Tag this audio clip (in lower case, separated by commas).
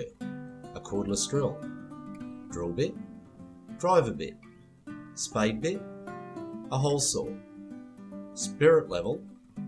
music, speech